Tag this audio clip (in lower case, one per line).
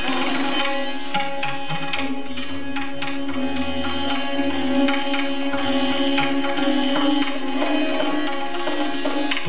plucked string instrument
sitar
tabla
music
musical instrument